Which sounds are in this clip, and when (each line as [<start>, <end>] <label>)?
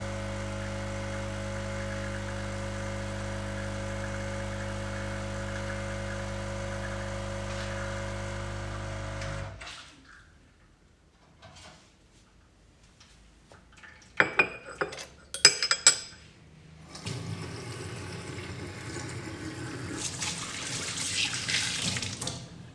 [0.00, 10.00] coffee machine
[14.22, 16.19] cutlery and dishes
[16.99, 22.52] running water